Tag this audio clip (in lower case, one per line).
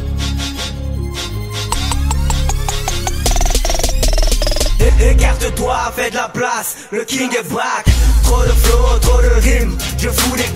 music
independent music